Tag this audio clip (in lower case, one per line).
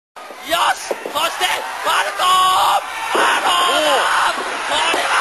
speech